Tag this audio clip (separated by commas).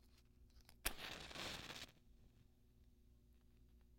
Fire